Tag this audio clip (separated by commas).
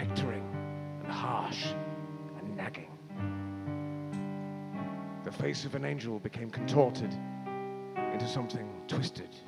Speech, Music